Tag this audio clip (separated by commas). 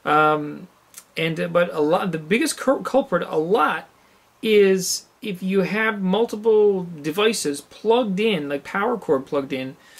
Speech